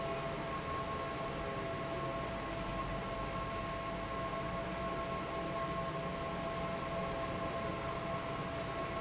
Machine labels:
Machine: fan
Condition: normal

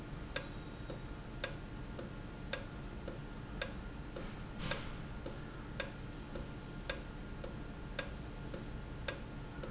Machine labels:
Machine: valve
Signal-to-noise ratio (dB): 0 dB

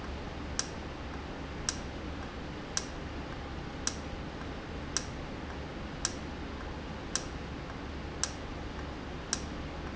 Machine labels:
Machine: valve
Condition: normal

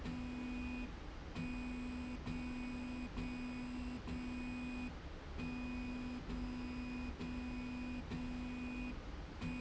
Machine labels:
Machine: slide rail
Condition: normal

